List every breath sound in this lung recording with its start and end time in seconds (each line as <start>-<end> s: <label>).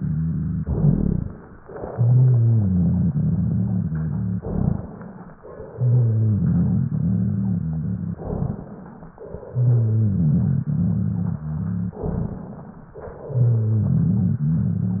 0.56-1.41 s: rhonchi
0.56-1.53 s: exhalation
1.59-4.38 s: inhalation
1.83-4.38 s: rhonchi
4.39-5.36 s: exhalation
4.39-5.36 s: rhonchi
5.38-8.14 s: inhalation
5.64-8.14 s: rhonchi
8.21-8.75 s: rhonchi
8.21-9.17 s: exhalation
9.17-11.97 s: inhalation
9.45-11.97 s: rhonchi
11.99-12.58 s: rhonchi
11.99-12.98 s: exhalation
12.98-15.00 s: inhalation
13.22-15.00 s: rhonchi